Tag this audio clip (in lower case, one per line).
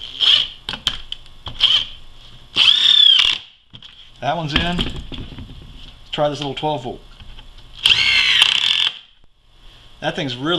tools
power tool